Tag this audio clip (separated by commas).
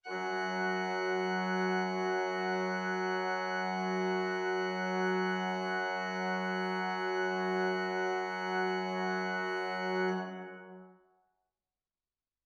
Keyboard (musical), Organ, Music, Musical instrument